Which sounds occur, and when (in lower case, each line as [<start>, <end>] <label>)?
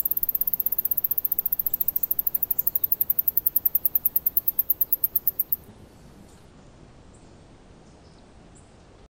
[0.00, 9.04] background noise
[1.66, 2.01] mouse
[2.31, 2.38] generic impact sounds
[2.55, 2.85] mouse
[4.25, 5.37] mouse
[6.23, 6.57] patter
[7.12, 7.21] mouse
[7.83, 8.23] mouse
[8.53, 8.60] mouse